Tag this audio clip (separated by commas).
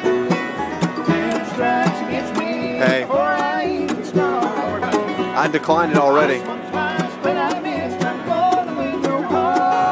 Speech, Music